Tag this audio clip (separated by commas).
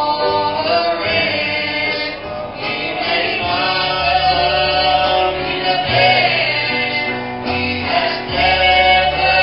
inside a public space, Music, Singing